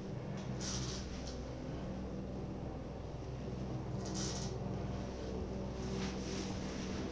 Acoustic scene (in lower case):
elevator